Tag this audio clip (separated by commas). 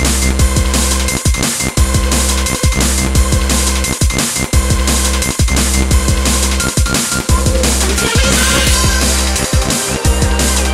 Music, Drum and bass